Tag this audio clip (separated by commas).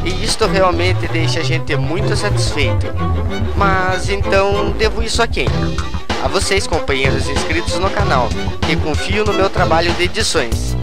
Music, Speech